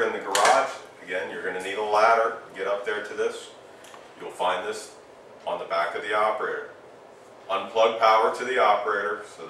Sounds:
speech

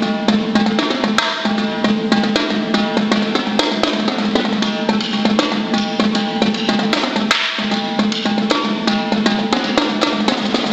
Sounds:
music, percussion

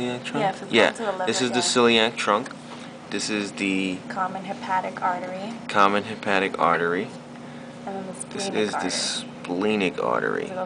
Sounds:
speech

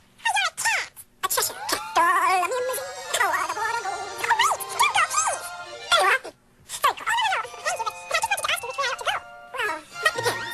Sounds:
speech

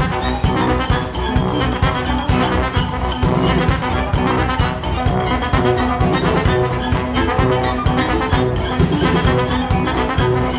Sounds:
disco, orchestra, music

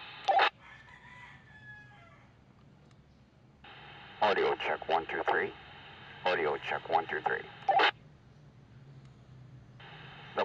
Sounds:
radio, speech

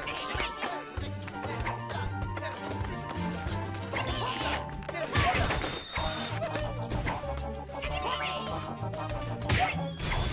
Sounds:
music

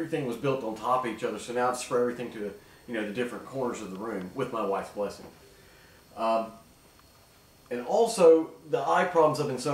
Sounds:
speech

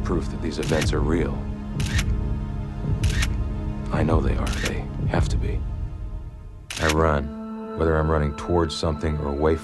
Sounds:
speech, music, male speech

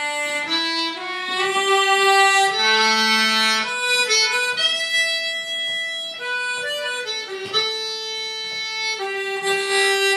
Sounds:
harmonica, wind instrument

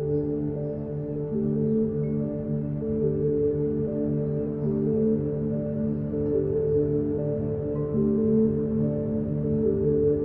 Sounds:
music

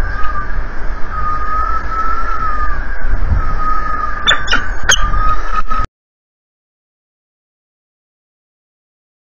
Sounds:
bird, animal

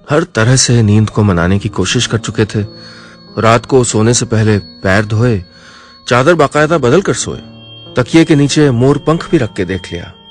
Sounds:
music, speech

